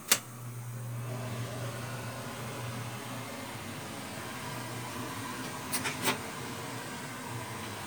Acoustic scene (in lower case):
kitchen